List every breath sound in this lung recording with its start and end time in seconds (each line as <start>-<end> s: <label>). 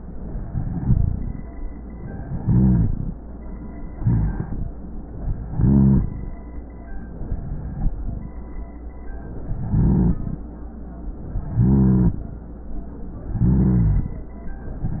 0.47-1.43 s: inhalation
0.80-1.43 s: rhonchi
2.26-3.13 s: inhalation
2.35-3.13 s: rhonchi
3.93-4.69 s: inhalation
3.93-4.69 s: rhonchi
5.46-6.22 s: inhalation
5.46-6.22 s: rhonchi
7.15-8.01 s: inhalation
7.55-8.01 s: rhonchi
9.45-10.21 s: inhalation
9.45-10.21 s: rhonchi
11.46-12.22 s: inhalation
11.46-12.22 s: rhonchi
13.28-14.21 s: inhalation
13.28-14.21 s: rhonchi